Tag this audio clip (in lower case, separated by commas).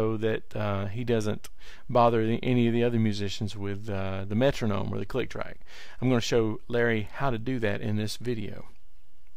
speech